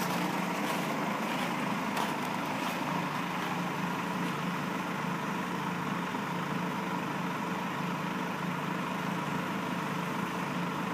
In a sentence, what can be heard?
A bus is idling gently outside